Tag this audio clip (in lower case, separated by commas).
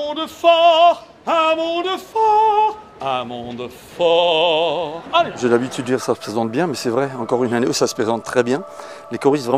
speech